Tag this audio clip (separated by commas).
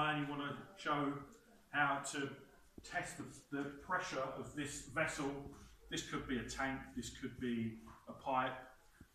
Speech